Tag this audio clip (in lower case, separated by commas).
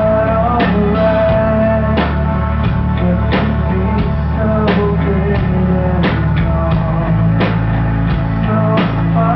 music